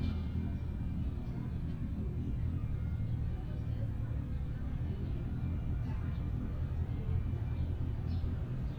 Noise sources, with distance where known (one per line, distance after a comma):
small-sounding engine